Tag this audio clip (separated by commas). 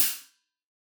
Musical instrument, Cymbal, Hi-hat, Music, Percussion